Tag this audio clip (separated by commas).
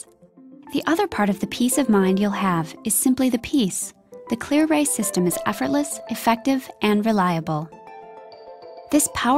Speech, Music